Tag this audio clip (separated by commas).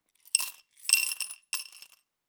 Glass, Coin (dropping), home sounds